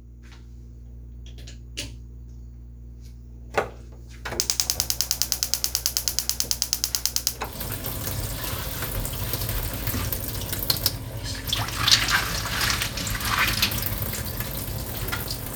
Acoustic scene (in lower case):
kitchen